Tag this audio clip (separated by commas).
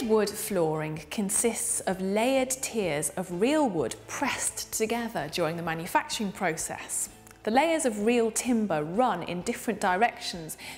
Speech